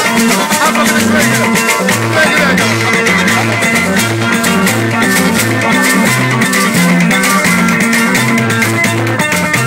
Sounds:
music, folk music, country

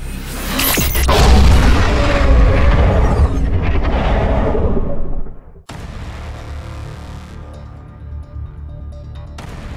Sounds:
dinosaurs bellowing

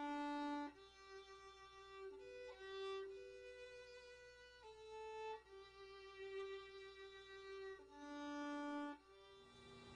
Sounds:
music, musical instrument, violin

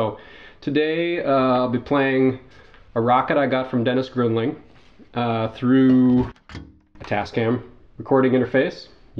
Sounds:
speech

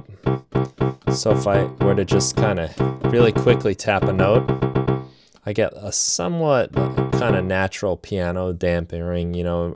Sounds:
music, speech, sampler, heart murmur

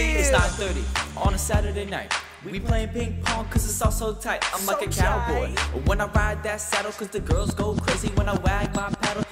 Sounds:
music

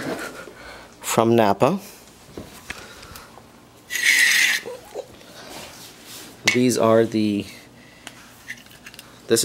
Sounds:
inside a small room, speech

